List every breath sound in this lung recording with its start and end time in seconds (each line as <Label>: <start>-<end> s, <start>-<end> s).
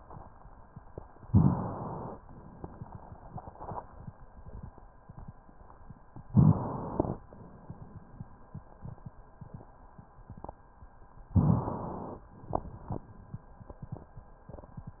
Inhalation: 1.29-2.17 s, 6.31-7.23 s, 11.37-12.28 s
Exhalation: 2.17-4.12 s